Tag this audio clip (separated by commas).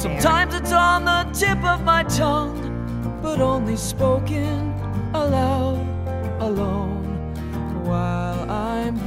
Music